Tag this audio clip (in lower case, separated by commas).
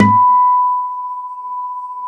plucked string instrument, guitar, music, acoustic guitar, musical instrument